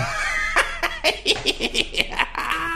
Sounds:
human voice, laughter

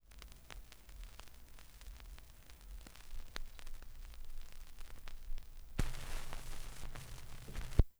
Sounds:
crackle

